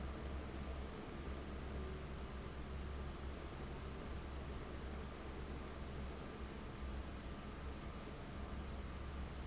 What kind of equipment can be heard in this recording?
fan